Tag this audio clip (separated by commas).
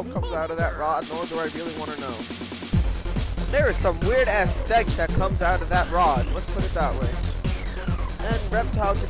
Speech, Music